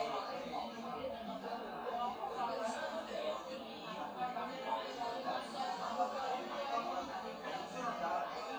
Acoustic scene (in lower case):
crowded indoor space